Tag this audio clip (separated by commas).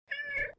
pets, Meow, Cat, Animal